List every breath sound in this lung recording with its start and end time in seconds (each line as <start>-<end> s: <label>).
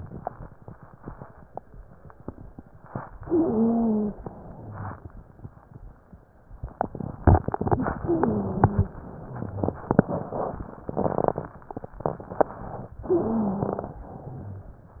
3.23-4.20 s: inhalation
3.23-4.20 s: wheeze
4.20-5.07 s: exhalation
4.52-5.07 s: wheeze
7.99-8.92 s: inhalation
7.99-8.92 s: wheeze
8.92-9.87 s: exhalation
9.20-9.87 s: wheeze
13.04-14.04 s: inhalation
13.04-14.04 s: wheeze
14.04-14.65 s: exhalation